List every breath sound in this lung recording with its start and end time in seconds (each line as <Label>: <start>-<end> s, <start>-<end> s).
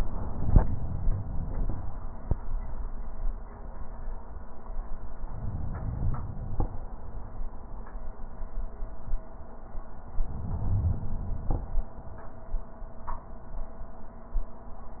Inhalation: 5.23-6.61 s, 10.21-11.59 s